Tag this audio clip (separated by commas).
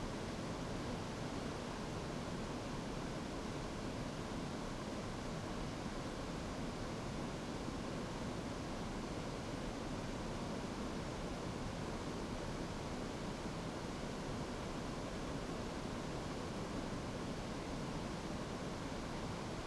Ocean, Water